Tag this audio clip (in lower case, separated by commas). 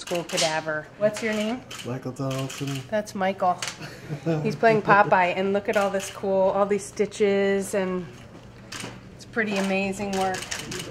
speech